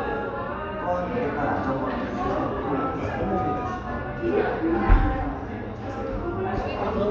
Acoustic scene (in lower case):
crowded indoor space